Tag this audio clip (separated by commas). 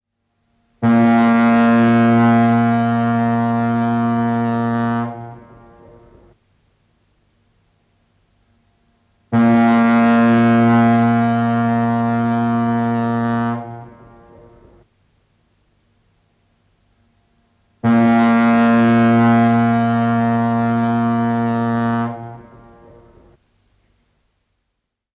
Boat, Vehicle